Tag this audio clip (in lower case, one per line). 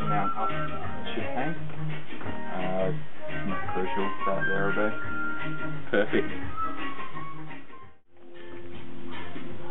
music
speech